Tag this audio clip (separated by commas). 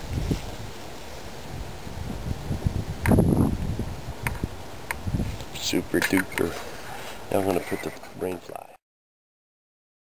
Speech, outside, rural or natural